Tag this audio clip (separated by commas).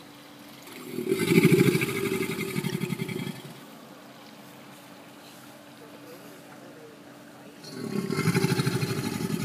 crocodiles hissing